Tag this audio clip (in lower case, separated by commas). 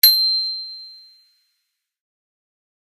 bicycle, vehicle, bicycle bell, bell, alarm